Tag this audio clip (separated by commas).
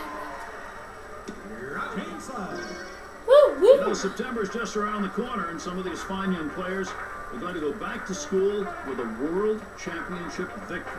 Speech, Music